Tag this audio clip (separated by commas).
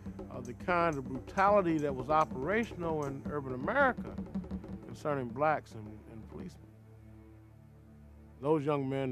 Speech, Music